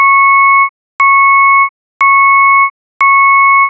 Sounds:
motor vehicle (road), vehicle, alarm, truck

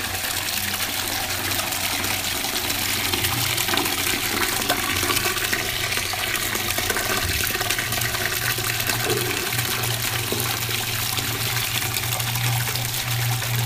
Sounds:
liquid

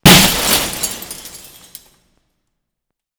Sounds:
shatter, glass

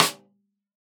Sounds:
percussion, musical instrument, drum, music, snare drum

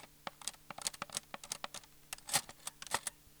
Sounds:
cutlery, domestic sounds

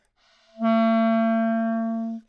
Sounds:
music, musical instrument, woodwind instrument

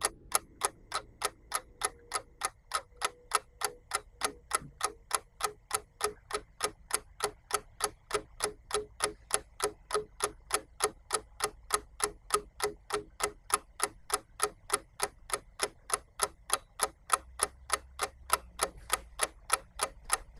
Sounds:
mechanisms, clock

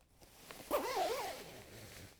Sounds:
zipper (clothing), domestic sounds

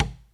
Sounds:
tap

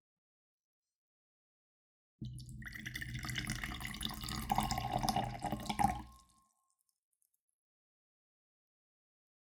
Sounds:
liquid, fill (with liquid)

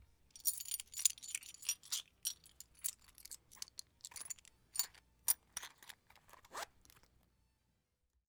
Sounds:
domestic sounds, coin (dropping), zipper (clothing)

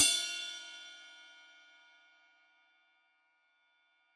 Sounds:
music, cymbal, percussion, musical instrument, hi-hat

